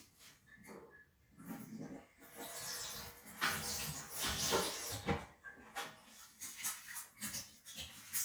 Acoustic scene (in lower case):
restroom